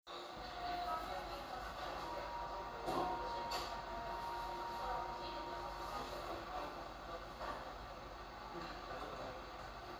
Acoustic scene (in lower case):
cafe